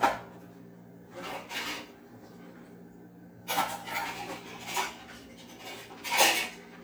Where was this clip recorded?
in a kitchen